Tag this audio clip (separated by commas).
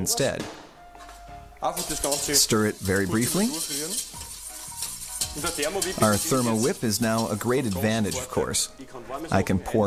Music, Speech